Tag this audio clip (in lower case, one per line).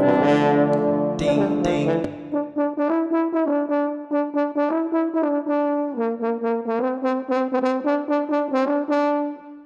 playing french horn